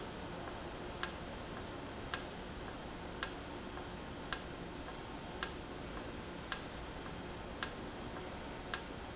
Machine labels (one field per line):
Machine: valve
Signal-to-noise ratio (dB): 0 dB